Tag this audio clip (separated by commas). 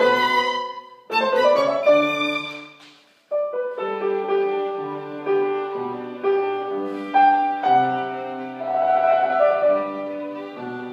Violin, Musical instrument, Music